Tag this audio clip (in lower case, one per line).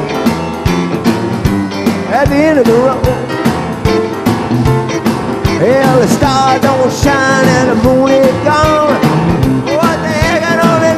rock and roll
music